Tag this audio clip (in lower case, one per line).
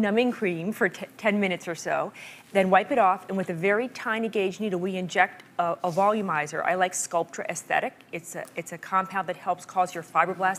speech